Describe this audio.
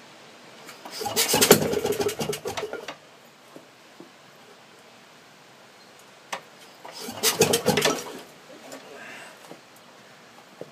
Small engine sputtering noises and grunt